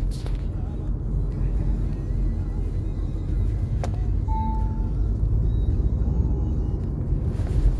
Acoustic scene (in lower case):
car